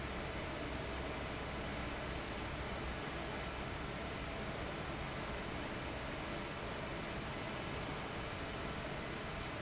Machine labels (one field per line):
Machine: fan